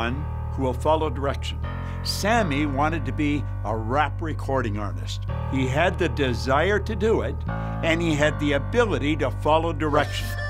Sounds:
music, speech

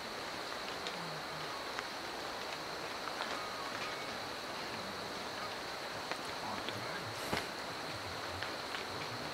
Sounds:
elk bugling

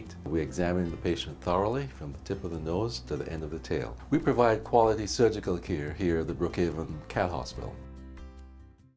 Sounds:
music, speech

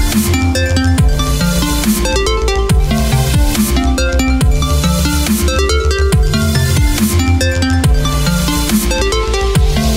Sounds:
music, electronic music

